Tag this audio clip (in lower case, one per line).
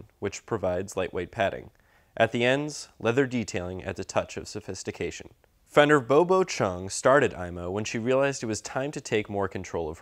speech